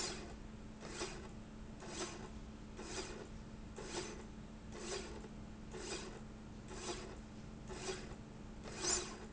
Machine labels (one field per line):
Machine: slide rail